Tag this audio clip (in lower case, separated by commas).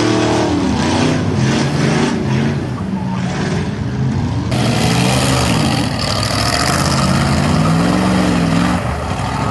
car, vehicle